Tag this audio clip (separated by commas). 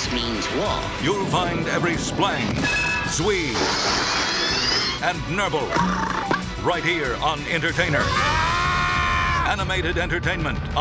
Music, Speech